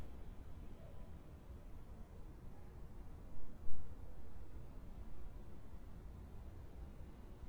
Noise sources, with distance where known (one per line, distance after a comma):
background noise